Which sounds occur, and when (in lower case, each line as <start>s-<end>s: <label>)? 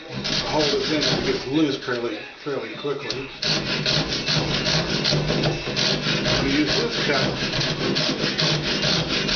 0.0s-3.4s: male speech
0.0s-9.3s: mechanisms
0.1s-1.5s: sawing
3.4s-9.3s: sawing
6.2s-7.3s: male speech